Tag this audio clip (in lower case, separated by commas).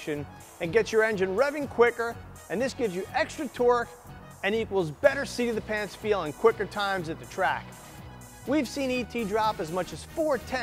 music, speech